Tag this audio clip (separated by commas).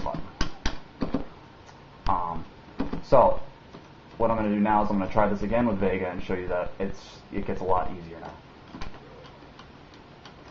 Speech